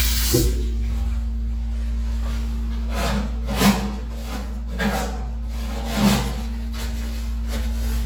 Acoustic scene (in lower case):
restroom